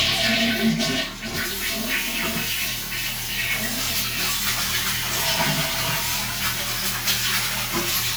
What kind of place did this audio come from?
restroom